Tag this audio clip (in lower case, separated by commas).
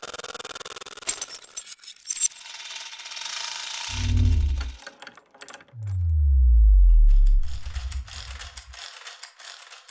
gears, mechanisms, pawl